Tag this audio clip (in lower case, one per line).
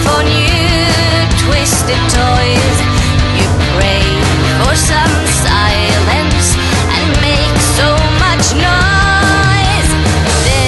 music